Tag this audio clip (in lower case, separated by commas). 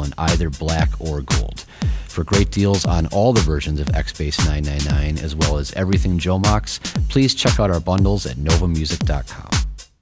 musical instrument, music, speech